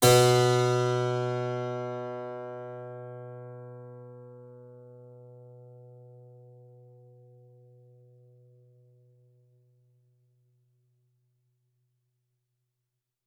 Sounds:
keyboard (musical), music, musical instrument

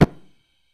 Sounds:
fire

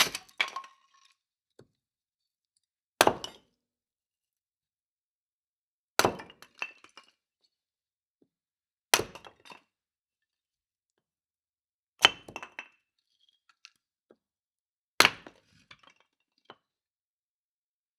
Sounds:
wood

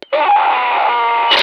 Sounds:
human voice, screaming

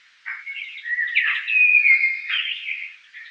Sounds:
bird, animal, wild animals

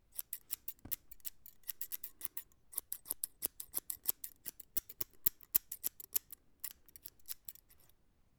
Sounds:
domestic sounds, scissors

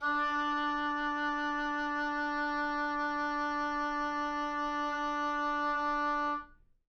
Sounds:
wind instrument, musical instrument, music

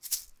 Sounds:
rattle (instrument), music, percussion, musical instrument

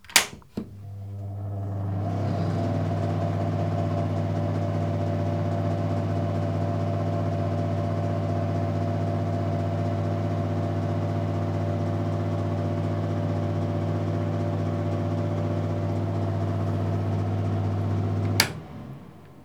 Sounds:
mechanical fan, mechanisms

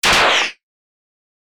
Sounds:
explosion, gunfire

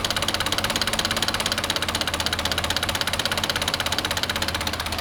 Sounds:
engine

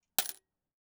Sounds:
coin (dropping), home sounds

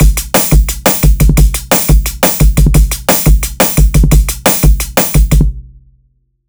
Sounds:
drum kit, music, musical instrument, percussion

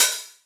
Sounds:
cymbal, hi-hat, music, percussion, musical instrument

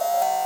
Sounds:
alarm

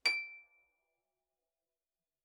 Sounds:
musical instrument, music, harp

